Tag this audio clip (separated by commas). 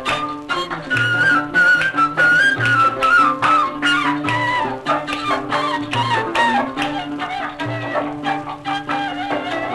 Traditional music, Music